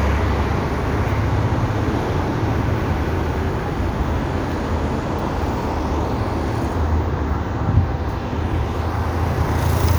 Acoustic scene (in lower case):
street